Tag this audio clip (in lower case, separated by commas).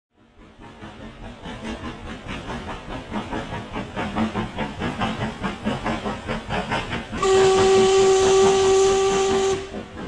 steam whistle, hiss, steam